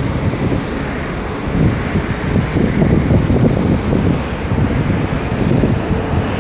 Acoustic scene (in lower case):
street